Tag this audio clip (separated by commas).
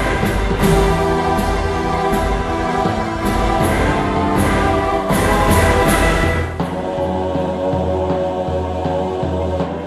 Music